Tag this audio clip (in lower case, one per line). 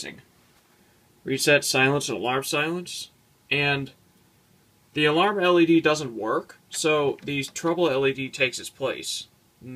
speech